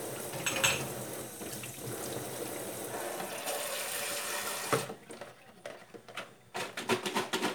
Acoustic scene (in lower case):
kitchen